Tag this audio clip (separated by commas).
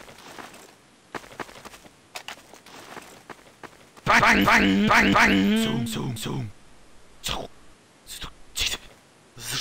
Sound effect